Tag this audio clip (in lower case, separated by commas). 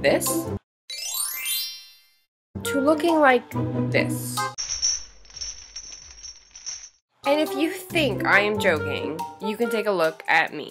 speech, inside a small room, music